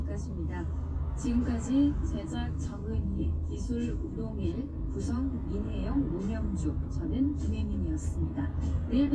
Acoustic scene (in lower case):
car